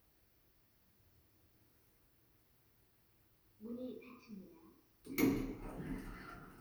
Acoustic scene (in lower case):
elevator